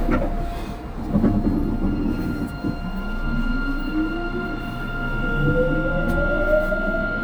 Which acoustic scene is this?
subway train